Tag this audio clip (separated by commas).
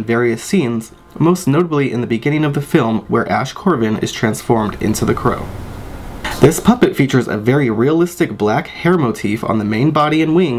Speech